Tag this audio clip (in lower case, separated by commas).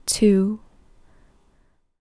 speech, female speech, human voice